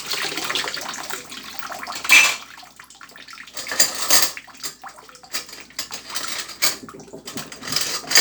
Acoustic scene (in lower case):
kitchen